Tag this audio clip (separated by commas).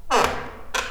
Squeak